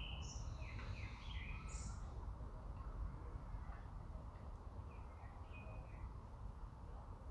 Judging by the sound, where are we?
in a park